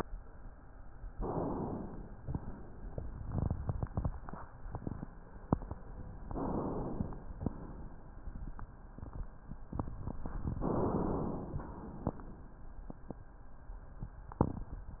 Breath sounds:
1.10-2.14 s: inhalation
6.26-7.30 s: inhalation
10.60-11.64 s: inhalation

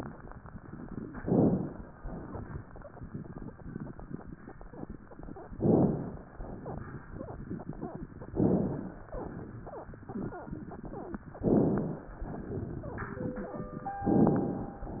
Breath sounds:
1.14-1.86 s: inhalation
2.01-2.73 s: exhalation
5.50-6.22 s: inhalation
6.36-7.08 s: exhalation
8.35-9.07 s: inhalation
9.18-9.91 s: exhalation
11.42-12.14 s: inhalation
12.31-13.55 s: exhalation
12.31-13.55 s: wheeze
14.12-14.84 s: inhalation

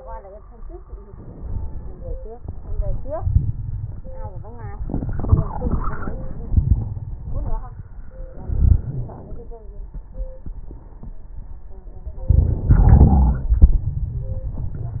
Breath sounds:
1.00-2.33 s: crackles
1.03-2.37 s: inhalation
2.36-4.79 s: exhalation
2.36-4.79 s: crackles
6.48-7.16 s: wheeze
8.35-9.53 s: inhalation
8.47-9.13 s: wheeze
12.30-13.52 s: inhalation
12.30-13.52 s: wheeze
13.53-15.00 s: exhalation
13.53-15.00 s: crackles

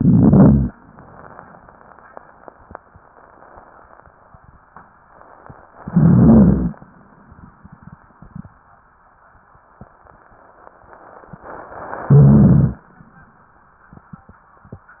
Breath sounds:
0.00-0.70 s: rhonchi
0.00-0.72 s: inhalation
5.82-6.79 s: inhalation
5.84-6.78 s: rhonchi
12.07-12.85 s: rhonchi
12.09-12.85 s: inhalation

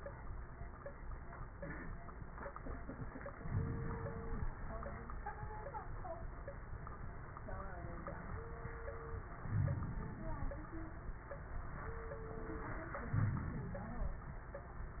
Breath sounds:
3.46-4.49 s: inhalation
3.46-4.49 s: crackles
9.45-10.47 s: inhalation
9.45-10.47 s: crackles
13.06-14.22 s: inhalation
13.06-14.22 s: crackles

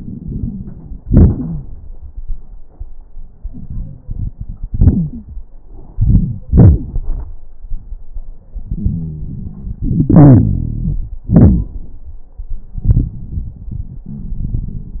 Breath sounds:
0.00-1.01 s: inhalation
0.00-1.01 s: crackles
1.01-1.94 s: exhalation
1.01-1.94 s: crackles
3.36-4.01 s: wheeze
4.73-5.31 s: wheeze
5.95-6.43 s: crackles
5.96-6.46 s: inhalation
6.46-7.05 s: exhalation
6.46-7.05 s: crackles
8.68-9.77 s: wheeze
9.83-11.23 s: inhalation
9.88-11.23 s: exhalation
11.28-11.72 s: exhalation
11.28-11.72 s: crackles
14.14-14.88 s: wheeze

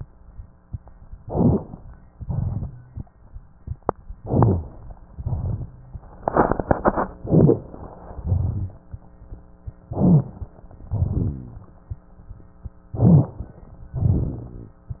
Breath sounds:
1.20-1.80 s: inhalation
1.20-1.80 s: rhonchi
2.13-2.73 s: exhalation
2.13-2.73 s: crackles
4.17-4.78 s: inhalation
4.17-4.78 s: rhonchi
5.14-5.75 s: exhalation
5.14-5.75 s: crackles
7.21-7.72 s: inhalation
7.21-7.72 s: rhonchi
8.14-8.88 s: exhalation
8.14-8.88 s: crackles
9.90-10.51 s: inhalation
9.90-10.51 s: rhonchi
10.91-11.73 s: exhalation
10.91-11.73 s: rhonchi
12.94-13.59 s: inhalation
12.94-13.59 s: crackles
13.95-14.78 s: exhalation
13.95-14.78 s: rhonchi

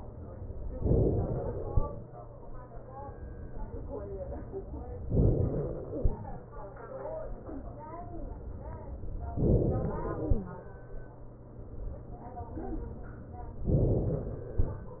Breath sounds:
0.81-1.76 s: inhalation
5.16-6.12 s: inhalation
6.12-8.13 s: exhalation
9.34-10.30 s: inhalation
13.70-14.66 s: inhalation

